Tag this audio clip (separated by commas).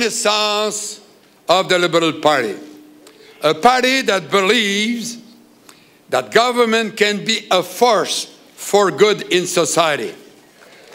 man speaking, Speech, monologue